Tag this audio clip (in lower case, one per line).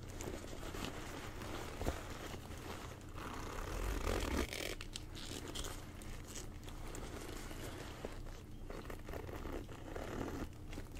zipper (clothing)